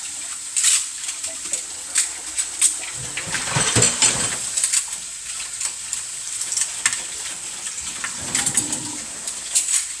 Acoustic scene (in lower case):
kitchen